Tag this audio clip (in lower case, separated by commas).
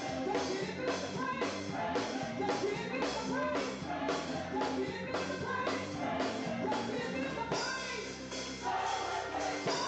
choir, music